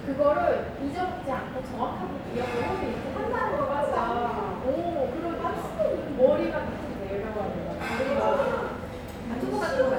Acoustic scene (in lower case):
restaurant